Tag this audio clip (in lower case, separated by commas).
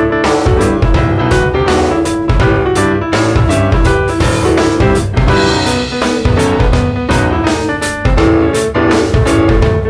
music